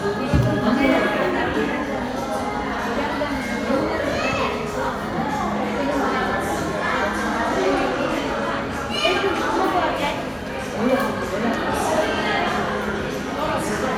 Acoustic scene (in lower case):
crowded indoor space